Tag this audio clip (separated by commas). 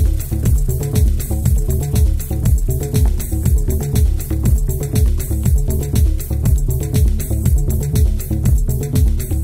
Music, Theme music